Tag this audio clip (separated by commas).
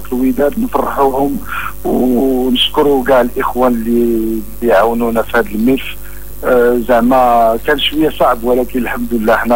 Radio, Speech